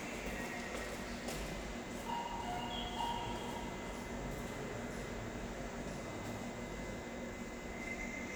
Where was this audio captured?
in a subway station